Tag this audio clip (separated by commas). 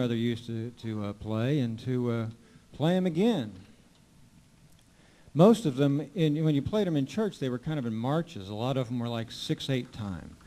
Speech